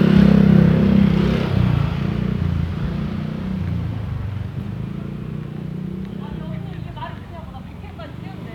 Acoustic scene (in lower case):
residential area